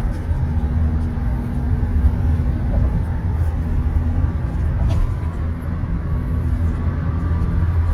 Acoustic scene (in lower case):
car